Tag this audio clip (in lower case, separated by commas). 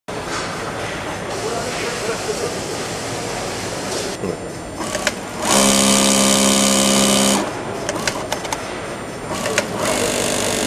sewing machine, using sewing machines, speech